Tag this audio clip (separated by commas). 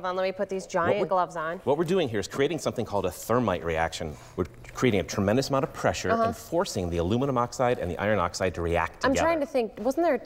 Speech